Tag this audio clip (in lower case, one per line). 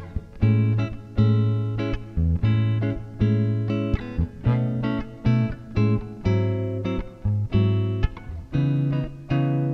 strum
bass guitar
musical instrument
guitar
plucked string instrument
music